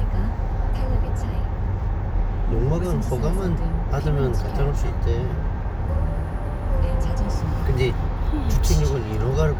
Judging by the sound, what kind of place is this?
car